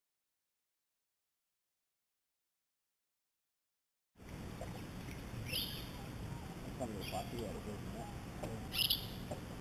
Bird chirp outside and people talk in the background